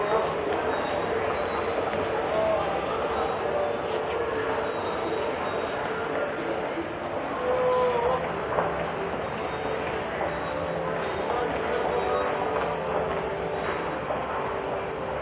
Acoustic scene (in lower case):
subway station